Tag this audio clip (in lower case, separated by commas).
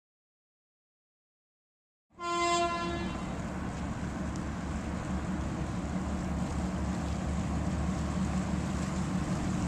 water vehicle, ship